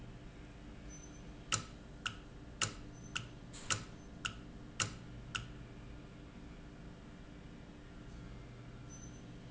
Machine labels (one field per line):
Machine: valve